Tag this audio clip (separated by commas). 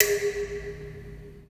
home sounds, dishes, pots and pans